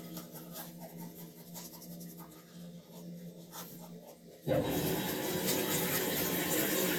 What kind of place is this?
restroom